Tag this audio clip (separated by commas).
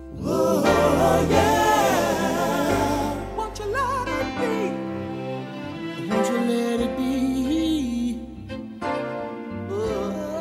Music